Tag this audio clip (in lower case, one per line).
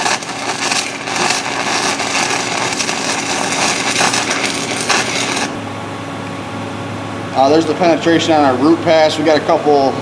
arc welding